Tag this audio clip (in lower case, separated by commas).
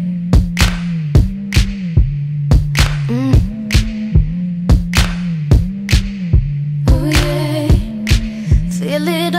pop music, music